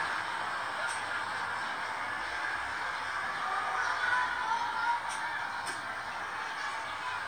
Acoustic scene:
residential area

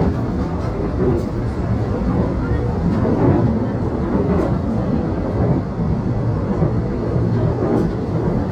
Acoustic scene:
subway train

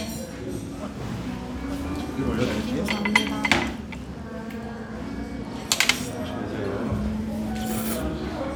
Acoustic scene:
restaurant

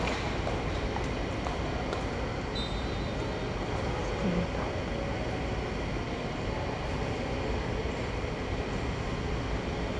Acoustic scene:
subway station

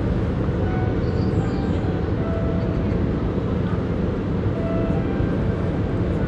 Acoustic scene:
park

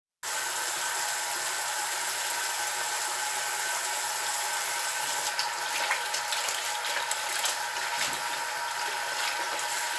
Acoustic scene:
restroom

